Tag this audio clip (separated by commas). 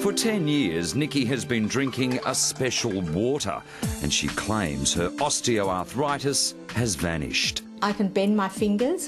Speech, Music